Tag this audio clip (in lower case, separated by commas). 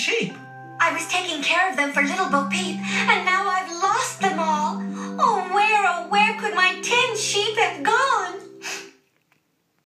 speech, music